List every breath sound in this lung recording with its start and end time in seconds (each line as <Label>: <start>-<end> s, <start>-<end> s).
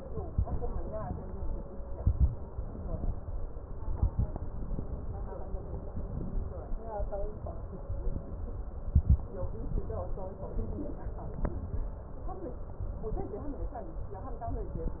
Inhalation: 0.11-0.77 s, 1.89-2.52 s, 3.81-4.48 s, 6.03-6.70 s, 8.74-9.40 s
Crackles: 0.11-0.77 s, 1.89-2.52 s, 3.81-4.48 s